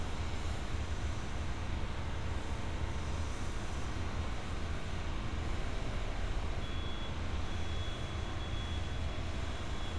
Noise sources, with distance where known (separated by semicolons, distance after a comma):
medium-sounding engine